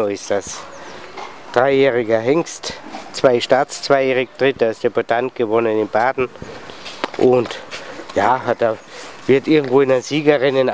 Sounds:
Speech, Animal, Horse

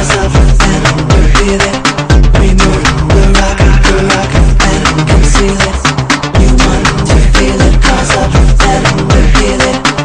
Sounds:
Music

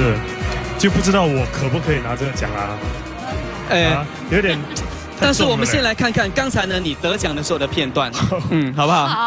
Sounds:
Music, Speech, Male speech

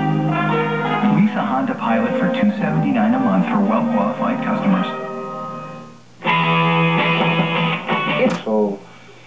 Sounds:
Television, Music, Speech

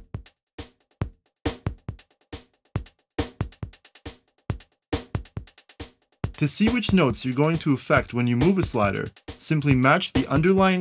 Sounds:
Speech, Music

